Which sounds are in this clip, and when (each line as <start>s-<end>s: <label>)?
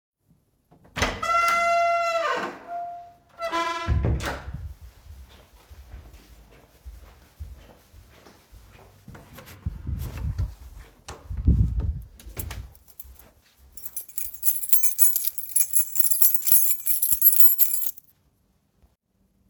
0.8s-4.8s: door
5.0s-9.0s: footsteps
12.6s-13.1s: keys
13.8s-18.0s: keys